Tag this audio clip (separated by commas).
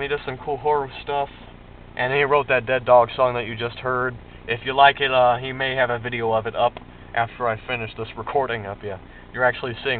Speech